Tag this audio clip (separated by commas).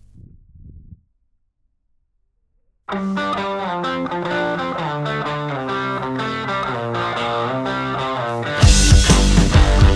Music